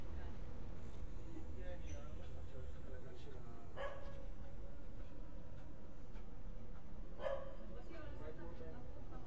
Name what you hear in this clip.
person or small group talking, dog barking or whining